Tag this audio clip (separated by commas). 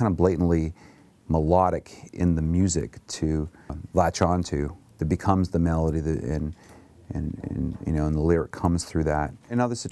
Speech